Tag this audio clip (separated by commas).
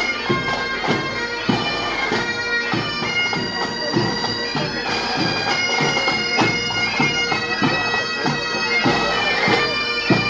woodwind instrument, Bagpipes